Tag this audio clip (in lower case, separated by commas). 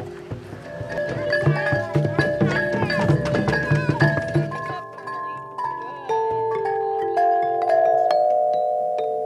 playing vibraphone